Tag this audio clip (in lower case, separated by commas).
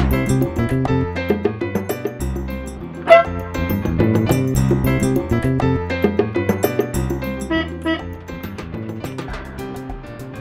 music